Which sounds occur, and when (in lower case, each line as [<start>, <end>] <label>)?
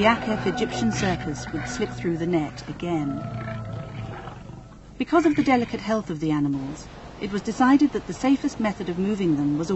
[0.00, 3.03] female speech
[0.00, 4.78] music
[0.00, 9.75] background noise
[0.91, 1.20] animal
[1.38, 1.86] generic impact sounds
[3.18, 4.75] roar
[4.96, 6.87] female speech
[4.99, 5.92] roar
[7.19, 9.75] female speech